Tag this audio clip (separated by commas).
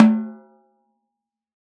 Snare drum, Drum, Music, Musical instrument, Percussion